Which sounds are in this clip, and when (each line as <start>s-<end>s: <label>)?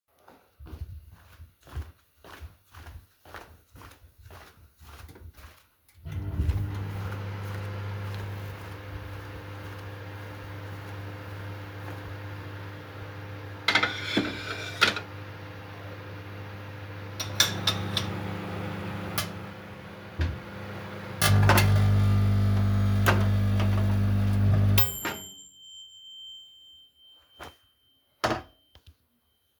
0.0s-13.0s: footsteps
5.9s-26.5s: microwave
13.5s-15.2s: cutlery and dishes
17.1s-19.6s: cutlery and dishes
21.0s-25.6s: coffee machine
28.1s-28.8s: cutlery and dishes